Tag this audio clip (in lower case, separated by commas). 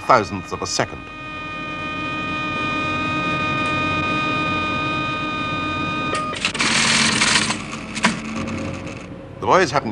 speech, inside a small room